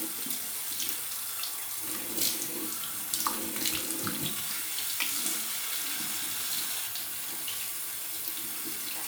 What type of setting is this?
restroom